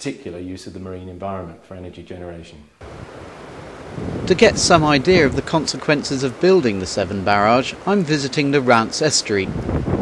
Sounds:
outside, rural or natural, speech

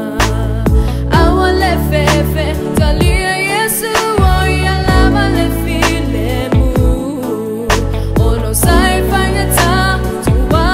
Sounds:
rhythm and blues, music

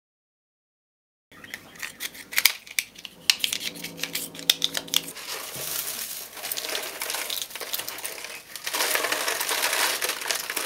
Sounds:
plastic bottle crushing

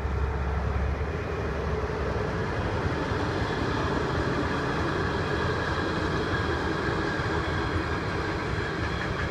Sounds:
train, vehicle, train wagon

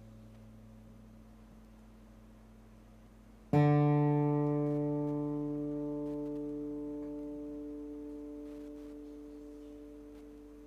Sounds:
music

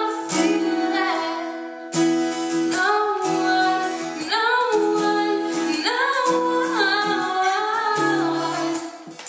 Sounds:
inside a small room, singing, music

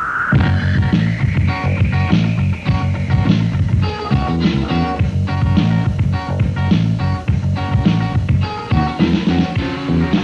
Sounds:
music

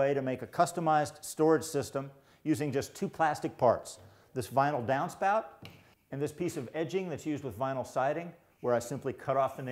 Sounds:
speech

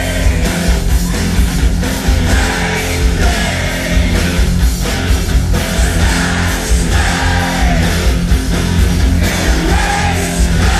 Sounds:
inside a large room or hall, music

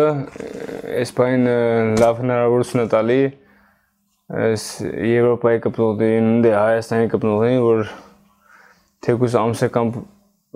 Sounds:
striking pool

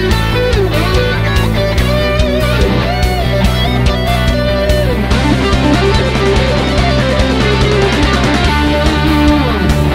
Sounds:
strum, musical instrument, bass guitar, guitar, electric guitar, music, plucked string instrument

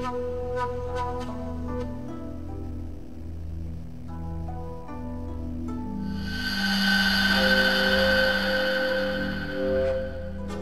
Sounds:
flute

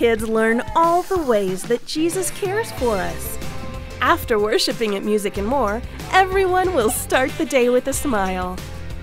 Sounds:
speech, music

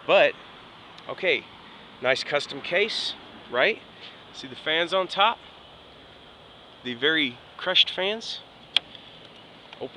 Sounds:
speech

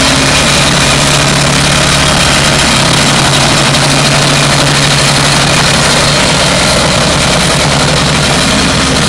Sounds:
engine

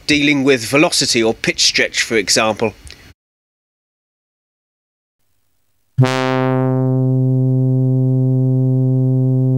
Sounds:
speech, music

